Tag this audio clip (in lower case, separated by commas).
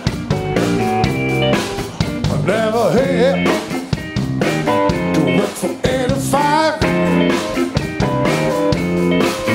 guitar, plucked string instrument, music, musical instrument, strum